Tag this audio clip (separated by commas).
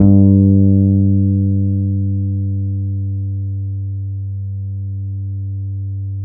Music, Plucked string instrument, Bass guitar, Musical instrument, Guitar